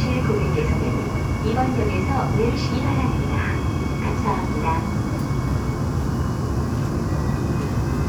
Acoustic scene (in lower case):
subway train